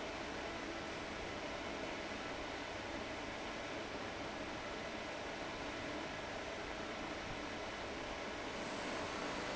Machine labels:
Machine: fan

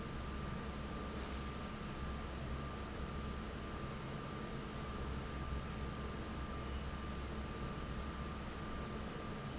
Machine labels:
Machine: fan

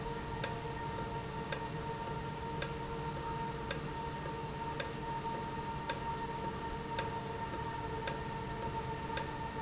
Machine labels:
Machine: valve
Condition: normal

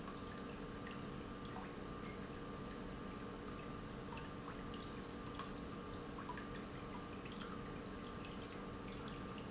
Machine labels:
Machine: pump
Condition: normal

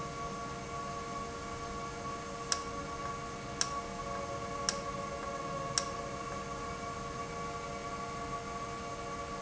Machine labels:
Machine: valve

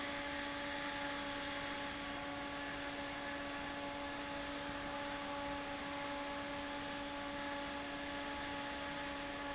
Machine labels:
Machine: fan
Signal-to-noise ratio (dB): 0 dB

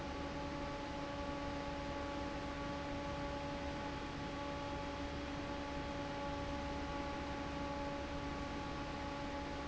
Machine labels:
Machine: fan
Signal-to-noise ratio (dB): 0 dB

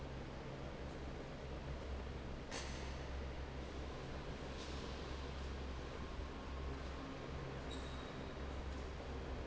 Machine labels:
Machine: fan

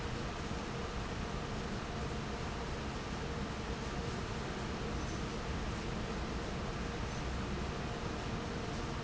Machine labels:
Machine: fan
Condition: normal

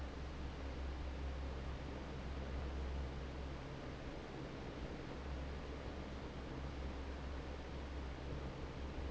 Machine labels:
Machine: fan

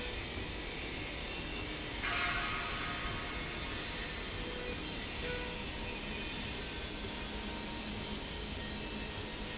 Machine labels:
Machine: slide rail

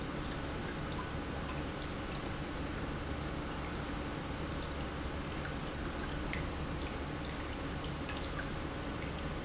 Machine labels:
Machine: pump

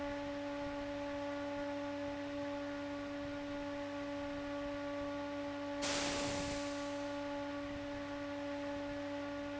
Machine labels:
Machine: fan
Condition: abnormal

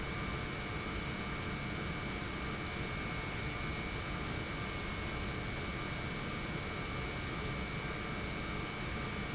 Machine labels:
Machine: pump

